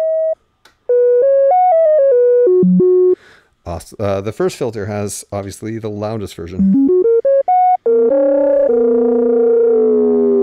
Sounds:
synthesizer, music, speech, keyboard (musical), inside a small room, musical instrument

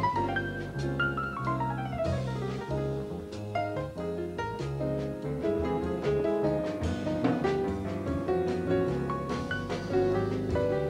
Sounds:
music

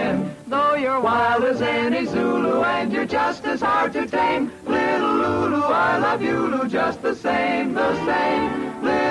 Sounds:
music

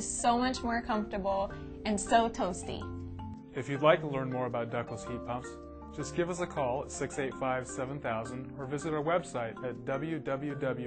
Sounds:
music, speech

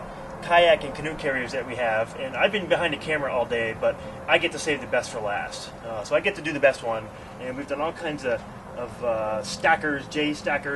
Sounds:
speech

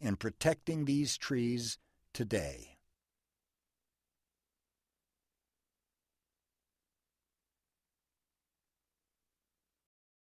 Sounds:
speech, speech synthesizer

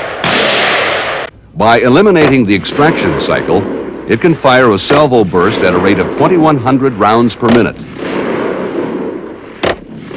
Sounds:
speech

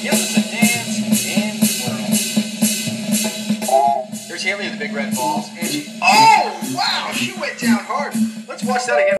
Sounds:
speech, music

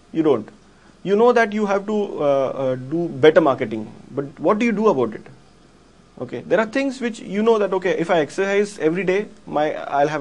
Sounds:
speech

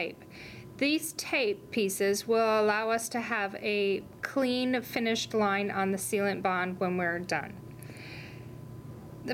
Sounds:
speech

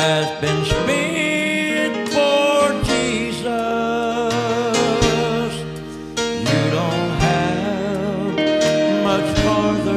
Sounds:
music, male singing

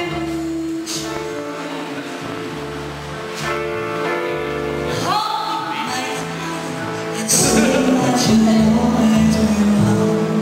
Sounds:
female singing, music, speech

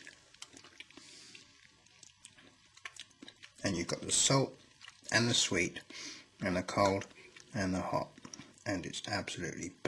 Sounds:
speech, mastication, inside a small room

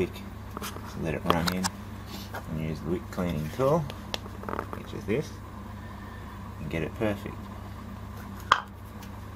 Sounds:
speech, inside a small room

